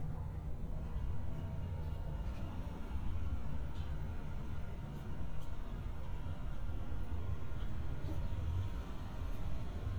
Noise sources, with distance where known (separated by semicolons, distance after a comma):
engine of unclear size, far